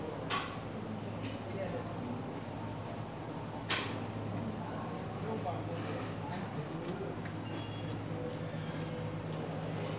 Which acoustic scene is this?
cafe